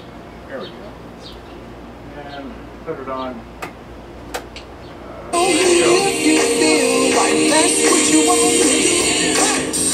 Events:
[0.00, 9.93] mechanisms
[0.50, 0.90] man speaking
[0.60, 0.72] chirp
[1.17, 1.36] chirp
[2.16, 2.47] man speaking
[2.28, 2.40] chirp
[2.87, 3.35] man speaking
[3.14, 3.31] chirp
[3.61, 3.72] generic impact sounds
[4.32, 4.40] generic impact sounds
[4.53, 4.63] generic impact sounds
[4.82, 4.98] chirp
[4.96, 5.32] human voice
[5.32, 9.93] music
[5.34, 7.25] male singing
[5.80, 6.06] man speaking
[7.10, 7.31] man speaking
[7.50, 9.61] male singing

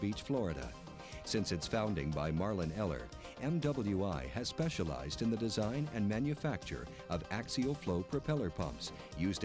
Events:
[0.00, 0.68] man speaking
[0.00, 9.44] music
[0.98, 1.23] breathing
[1.22, 3.08] man speaking
[3.14, 3.35] breathing
[3.38, 6.84] man speaking
[6.89, 7.08] breathing
[7.08, 8.86] man speaking
[8.94, 9.14] breathing

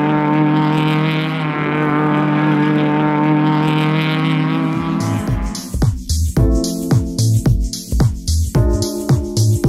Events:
[0.00, 5.52] accelerating
[0.00, 5.54] auto racing
[4.98, 9.65] music

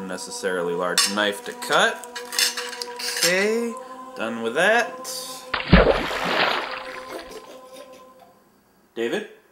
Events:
[0.00, 1.99] man speaking
[0.00, 8.27] music
[0.57, 0.65] tick
[0.93, 1.22] silverware
[1.55, 3.30] silverware
[2.96, 3.73] man speaking
[3.69, 3.95] breathing
[3.71, 3.82] tick
[4.11, 4.85] man speaking
[5.01, 5.50] sound effect
[5.52, 7.39] splatter
[6.98, 8.06] human voice
[7.39, 9.51] mechanisms
[8.13, 8.25] tick
[8.95, 9.38] man speaking

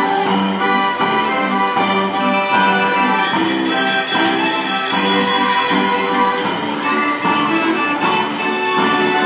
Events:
[0.01, 9.25] music

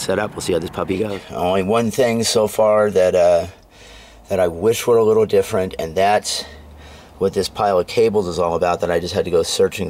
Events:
[0.00, 1.17] male speech
[0.00, 1.22] motor vehicle (road)
[1.26, 9.85] background noise
[1.30, 3.52] male speech
[3.58, 3.69] tick
[3.73, 4.22] breathing
[3.82, 7.08] motor vehicle (road)
[4.29, 6.54] male speech
[6.76, 7.17] breathing
[7.20, 9.85] male speech

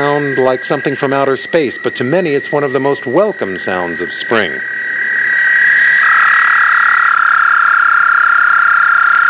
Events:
[0.00, 4.58] male speech
[0.00, 9.25] croak

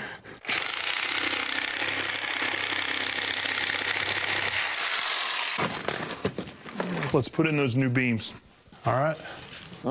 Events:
[0.00, 0.37] breathing
[0.35, 7.15] mechanisms
[7.08, 8.38] male speech
[8.79, 9.71] generic impact sounds
[9.77, 9.90] human voice

